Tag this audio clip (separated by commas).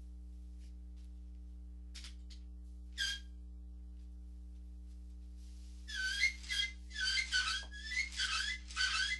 inside a small room